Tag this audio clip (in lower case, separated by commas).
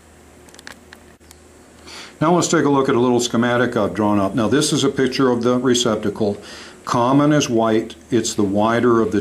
speech, inside a small room